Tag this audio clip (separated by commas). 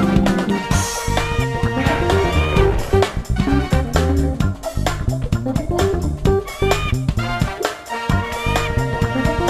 Music